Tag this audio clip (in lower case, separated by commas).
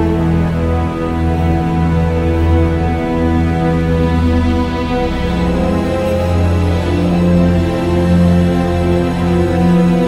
music